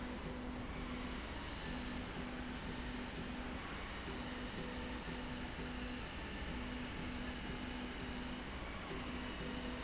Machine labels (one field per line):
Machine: slide rail